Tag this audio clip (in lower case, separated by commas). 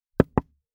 domestic sounds, wood, knock, door